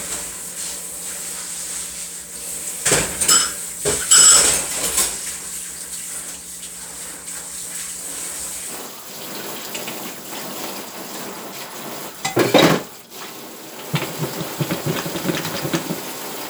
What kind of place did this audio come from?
kitchen